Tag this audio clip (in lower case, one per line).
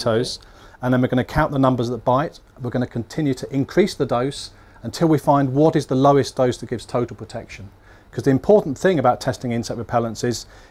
speech